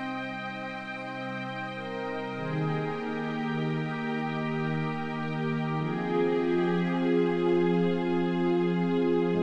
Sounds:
music

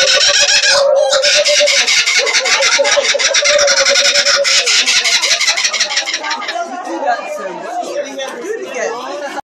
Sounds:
speech

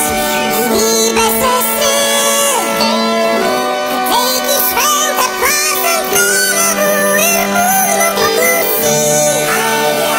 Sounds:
music

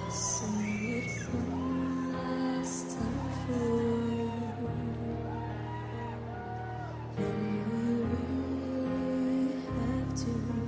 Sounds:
music

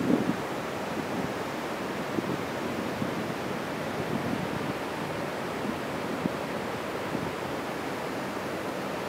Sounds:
surf

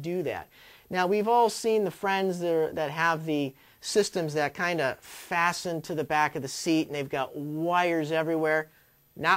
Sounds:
speech

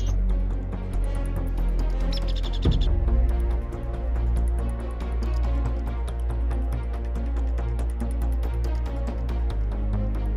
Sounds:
music

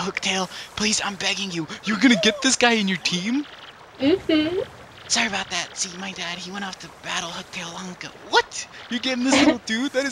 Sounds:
speech

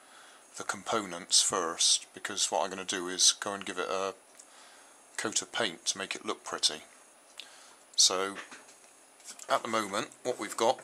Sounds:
speech

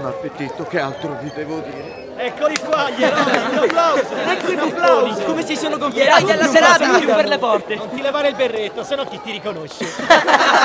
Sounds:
speech

